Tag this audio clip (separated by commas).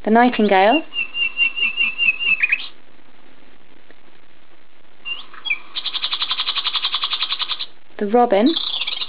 tweet, Bird, Speech